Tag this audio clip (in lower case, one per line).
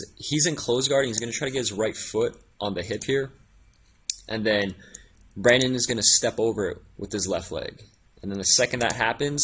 speech